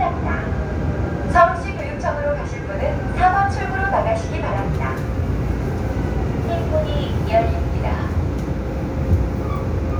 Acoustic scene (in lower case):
subway train